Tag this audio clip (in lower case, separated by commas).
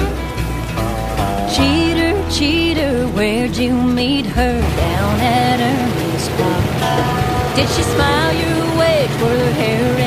music, car, vehicle